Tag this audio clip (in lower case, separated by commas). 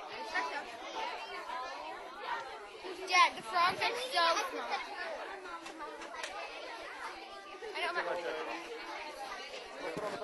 speech